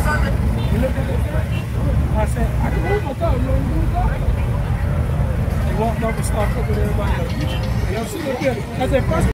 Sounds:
music, motor vehicle (road), car, vehicle, speech

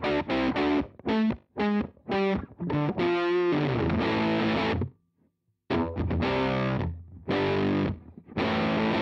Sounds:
music, distortion, guitar, effects unit, chorus effect

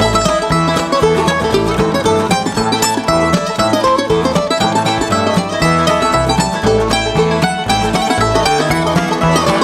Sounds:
plucked string instrument, musical instrument, banjo, country, music

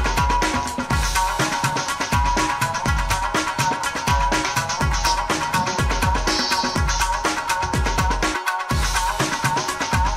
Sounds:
exciting music, music

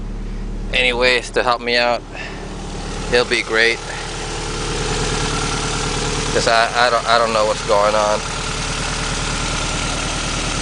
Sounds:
vehicle, engine, speech, car, motor vehicle (road)

